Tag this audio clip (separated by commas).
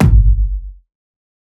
Drum, Bass drum, Musical instrument, Percussion, Music